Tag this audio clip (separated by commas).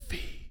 Human voice, Whispering